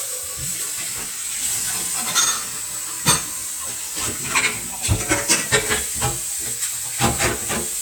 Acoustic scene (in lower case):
kitchen